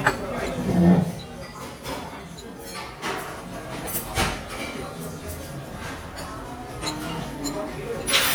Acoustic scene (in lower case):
restaurant